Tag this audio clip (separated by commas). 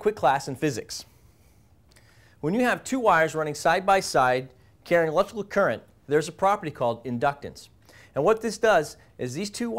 Speech